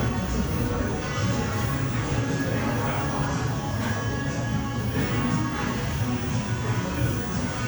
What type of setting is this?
cafe